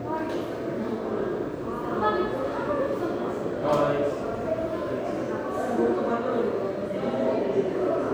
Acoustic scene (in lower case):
subway station